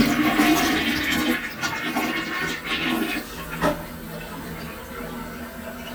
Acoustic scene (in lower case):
restroom